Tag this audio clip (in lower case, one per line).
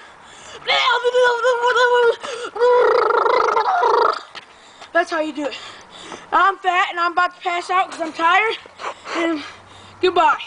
speech